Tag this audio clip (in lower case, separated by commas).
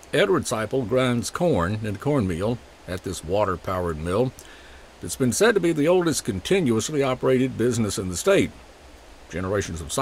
speech